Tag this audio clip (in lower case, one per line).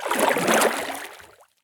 liquid
splatter